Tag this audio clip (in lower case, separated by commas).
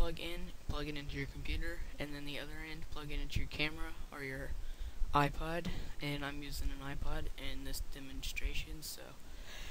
speech